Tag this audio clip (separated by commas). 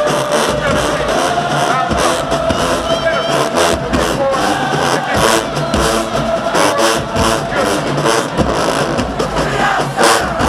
Speech, Music